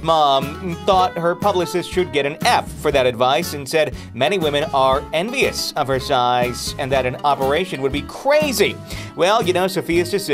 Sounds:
music, speech

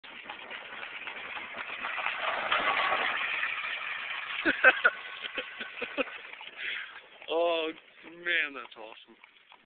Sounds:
clip-clop, speech

